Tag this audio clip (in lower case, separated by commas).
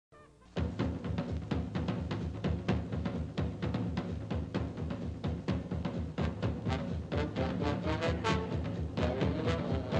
playing tympani